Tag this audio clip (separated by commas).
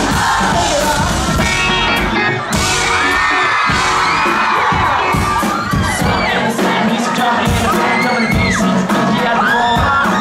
Music, Speech